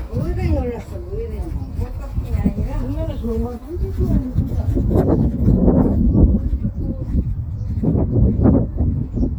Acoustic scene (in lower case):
residential area